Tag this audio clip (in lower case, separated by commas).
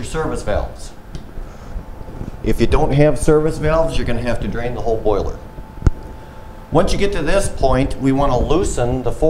speech